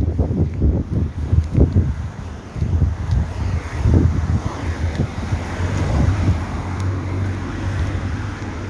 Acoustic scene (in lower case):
residential area